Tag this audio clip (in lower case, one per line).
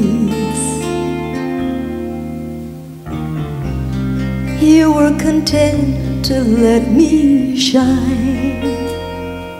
music